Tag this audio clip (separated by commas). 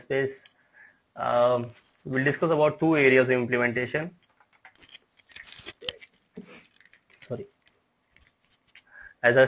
inside a small room, Speech